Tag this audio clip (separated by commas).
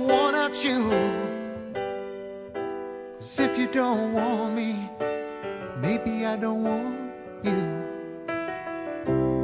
Music